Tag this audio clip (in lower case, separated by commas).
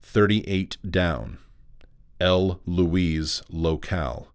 human voice, man speaking, speech